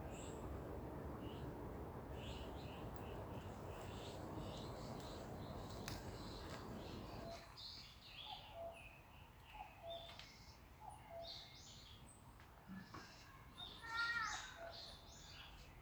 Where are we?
in a park